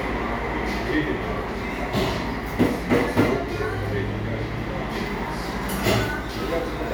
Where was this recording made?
in a cafe